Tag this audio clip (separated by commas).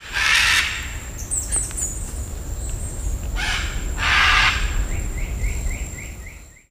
Wild animals, Animal, Bird